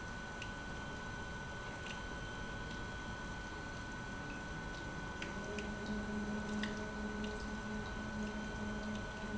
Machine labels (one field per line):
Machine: pump